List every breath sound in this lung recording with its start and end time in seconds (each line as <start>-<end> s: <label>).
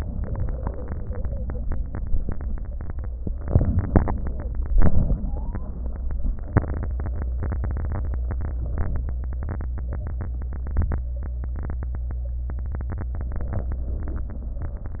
3.43-4.58 s: inhalation
4.74-5.90 s: exhalation
4.74-5.90 s: wheeze